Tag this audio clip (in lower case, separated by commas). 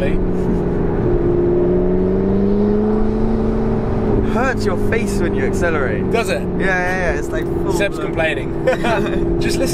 car, speech, vehicle